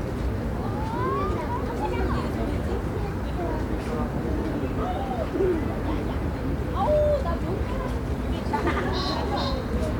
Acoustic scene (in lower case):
residential area